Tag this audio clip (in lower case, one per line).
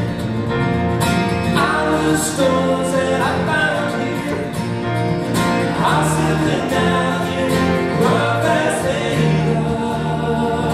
music